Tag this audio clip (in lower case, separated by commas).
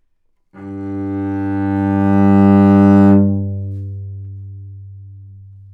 musical instrument, music, bowed string instrument